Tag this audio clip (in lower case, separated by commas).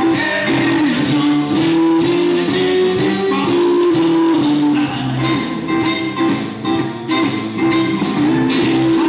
music